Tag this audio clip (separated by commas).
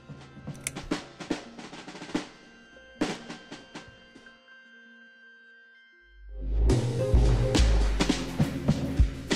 Snare drum, Drum, Drum roll, Percussion